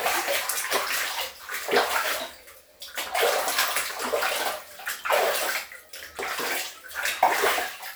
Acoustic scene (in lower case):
restroom